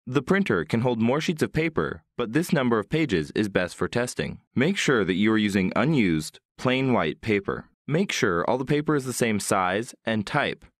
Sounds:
speech

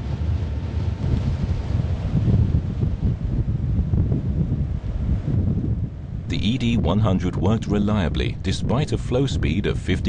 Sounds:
outside, rural or natural
speech

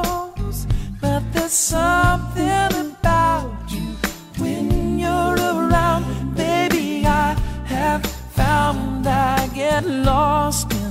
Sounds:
singing
music

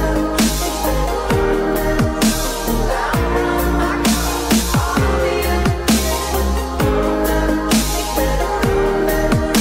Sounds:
electronic music
music
dubstep

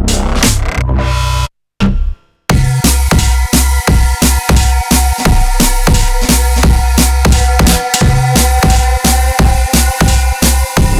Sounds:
drum and bass
music
electronic music

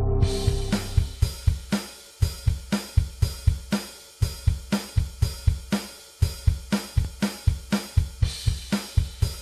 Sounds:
music

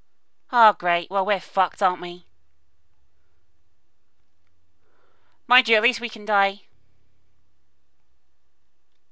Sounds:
inside a small room
speech

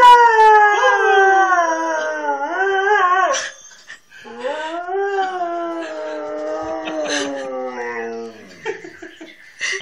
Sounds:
dog howling

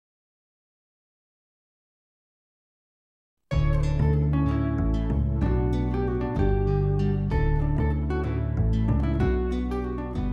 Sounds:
music

